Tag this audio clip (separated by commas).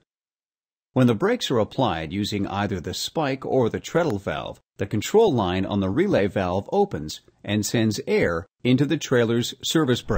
Speech